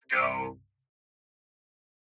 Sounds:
speech, human voice

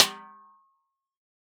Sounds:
percussion, snare drum, musical instrument, music, drum

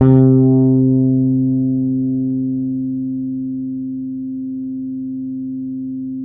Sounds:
musical instrument, guitar, plucked string instrument, bass guitar, music

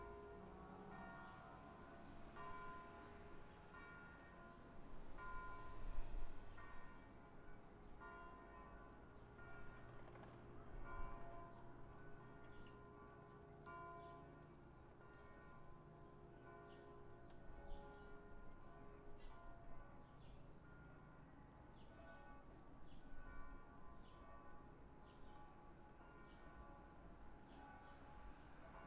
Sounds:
church bell, bell

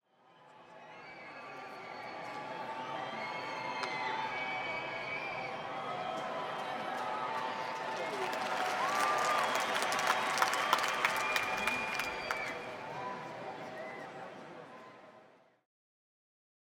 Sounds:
cheering, human group actions, crowd, applause

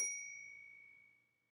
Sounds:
bell

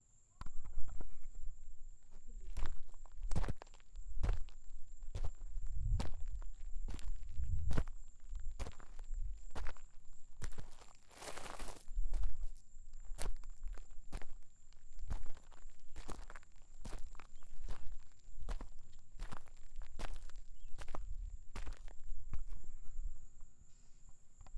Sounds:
cricket, animal, insect, wild animals

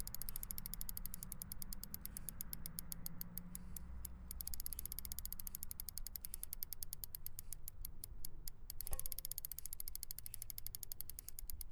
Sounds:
bicycle, vehicle

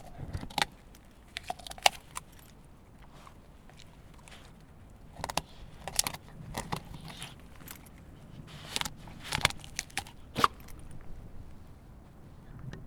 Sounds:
animal, domestic animals, dog

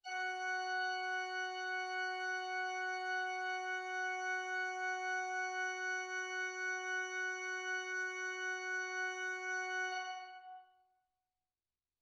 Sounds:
music, musical instrument, keyboard (musical), organ

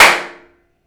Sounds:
hands, clapping

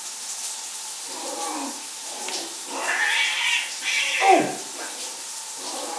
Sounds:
home sounds, cat, animal, domestic animals, bathtub (filling or washing)

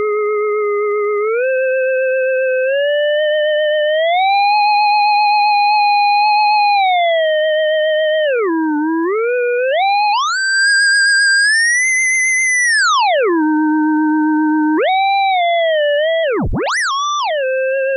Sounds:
music, musical instrument

